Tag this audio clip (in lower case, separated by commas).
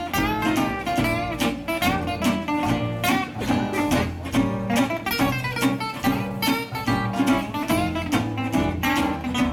guitar, bowed string instrument, musical instrument, music